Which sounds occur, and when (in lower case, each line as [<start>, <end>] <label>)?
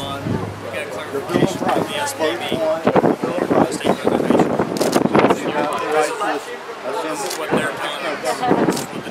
[0.00, 0.43] wind noise (microphone)
[0.00, 2.49] male speech
[0.00, 9.10] speech noise
[0.00, 9.10] wind
[1.18, 2.15] wind noise (microphone)
[2.48, 5.69] wind noise (microphone)
[3.36, 4.58] male speech
[5.39, 6.49] male speech
[6.83, 9.10] male speech
[7.14, 7.43] single-lens reflex camera
[7.42, 7.76] wind noise (microphone)
[8.39, 9.10] wind noise (microphone)
[8.63, 8.85] single-lens reflex camera